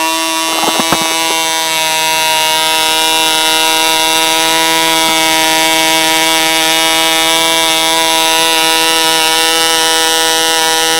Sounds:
electric razor

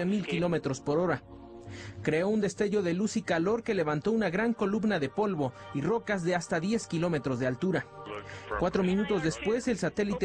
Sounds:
music, speech

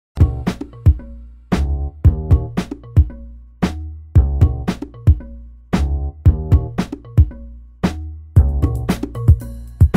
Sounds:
funk, music

